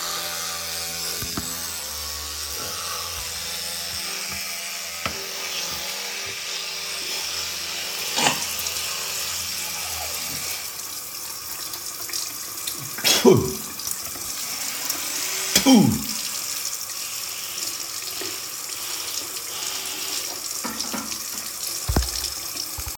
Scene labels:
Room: bathroom; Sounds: running water

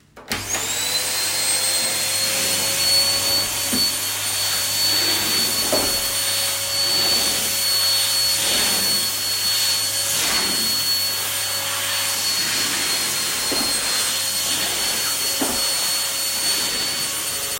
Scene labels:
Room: living room; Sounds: vacuum cleaner

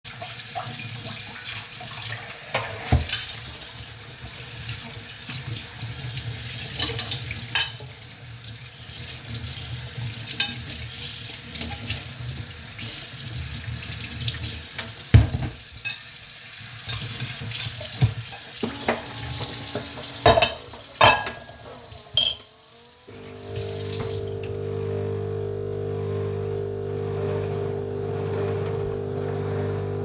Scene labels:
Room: kitchen; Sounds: running water, cutlery and dishes, coffee machine

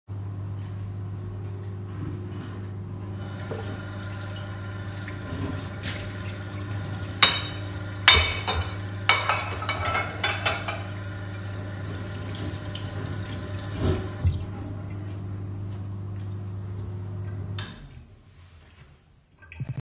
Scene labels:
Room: kitchen; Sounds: microwave, running water, cutlery and dishes

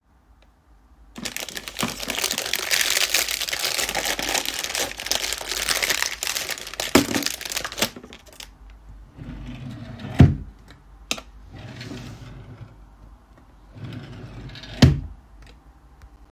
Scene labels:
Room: living room; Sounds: keyboard typing, wardrobe or drawer

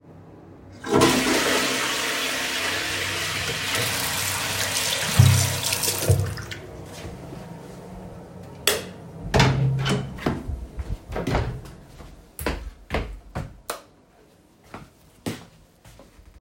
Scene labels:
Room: bathroom, bedroom; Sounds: toilet flushing, running water, light switch, door, footsteps

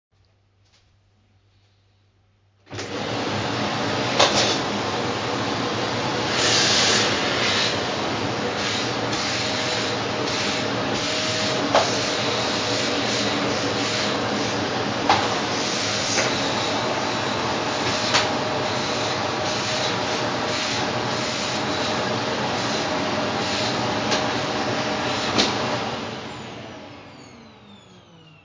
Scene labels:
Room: living room; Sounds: vacuum cleaner

